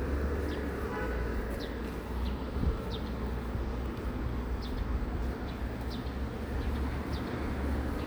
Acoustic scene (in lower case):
residential area